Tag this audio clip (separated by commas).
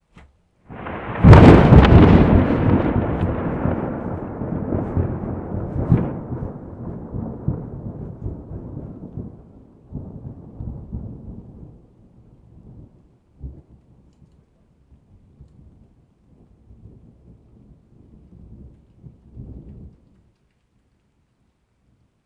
Thunder, Thunderstorm